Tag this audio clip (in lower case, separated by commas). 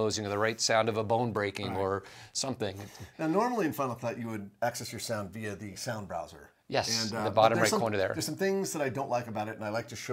speech